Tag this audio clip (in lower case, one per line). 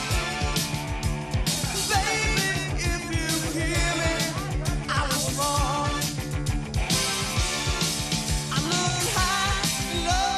music